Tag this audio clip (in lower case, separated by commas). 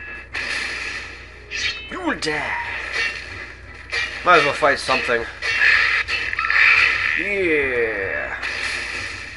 speech, inside a large room or hall